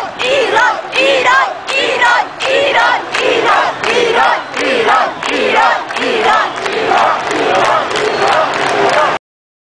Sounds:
Cheering

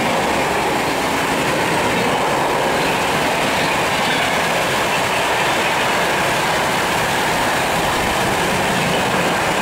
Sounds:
metro, Railroad car, Train, Vehicle, Rail transport

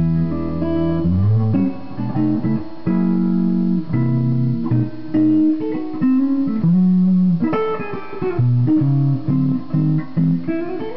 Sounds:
Music, Electric guitar, Musical instrument, Guitar, Plucked string instrument

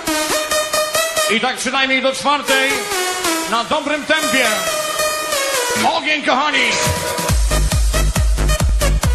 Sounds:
Music, Independent music

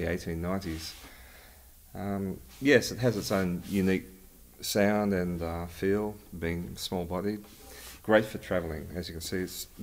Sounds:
Speech

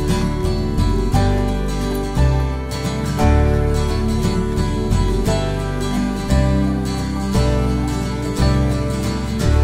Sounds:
Music

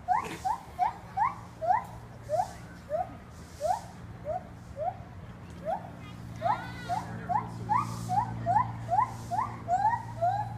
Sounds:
gibbon howling

